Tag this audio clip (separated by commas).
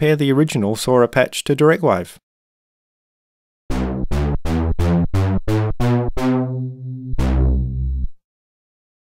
Musical instrument, Speech, Synthesizer, Music, Sampler